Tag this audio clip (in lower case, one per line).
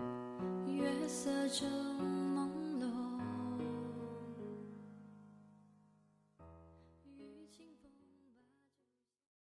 music